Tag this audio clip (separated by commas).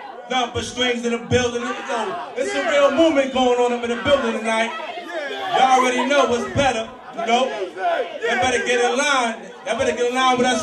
Crowd